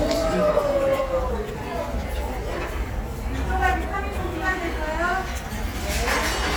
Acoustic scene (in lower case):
restaurant